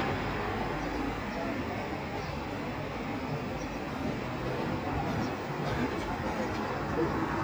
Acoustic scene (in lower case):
street